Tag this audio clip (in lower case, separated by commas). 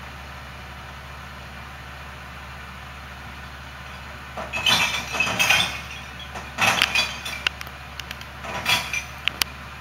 vehicle, truck